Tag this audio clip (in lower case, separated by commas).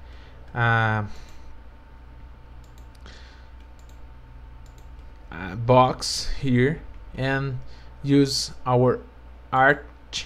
speech